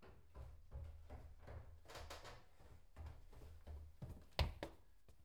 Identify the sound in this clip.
footsteps on a wooden floor